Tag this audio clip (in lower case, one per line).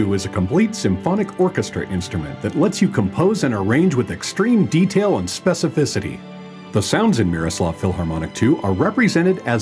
speech
music